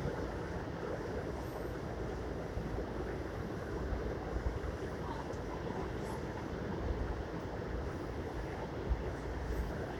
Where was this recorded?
on a subway train